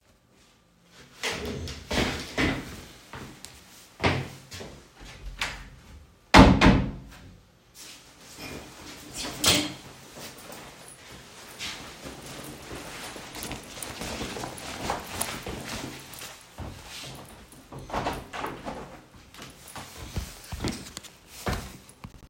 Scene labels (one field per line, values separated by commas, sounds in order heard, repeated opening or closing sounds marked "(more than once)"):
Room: bedroom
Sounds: footsteps, wardrobe or drawer, door